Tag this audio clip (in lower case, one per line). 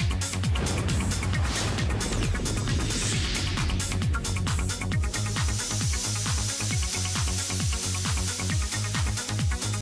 music
spray